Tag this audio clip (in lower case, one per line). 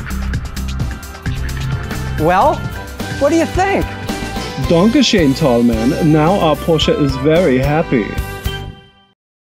music
speech